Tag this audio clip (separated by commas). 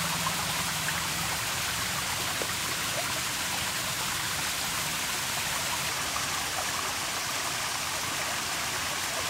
outside, rural or natural